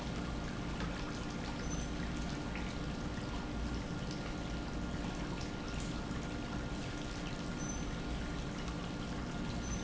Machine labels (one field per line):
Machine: pump